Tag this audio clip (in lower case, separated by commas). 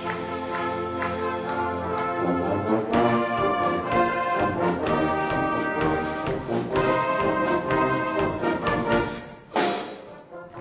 brass instrument, trumpet